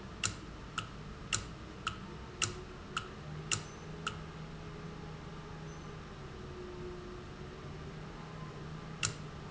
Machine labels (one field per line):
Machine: valve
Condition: normal